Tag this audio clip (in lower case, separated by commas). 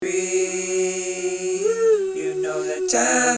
human voice